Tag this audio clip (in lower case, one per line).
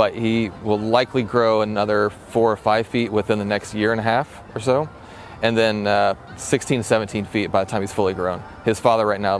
speech
music